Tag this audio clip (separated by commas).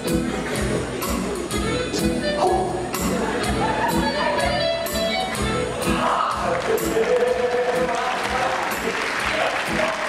Background music, Music